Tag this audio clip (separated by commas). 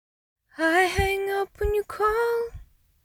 Human voice, Female singing, Singing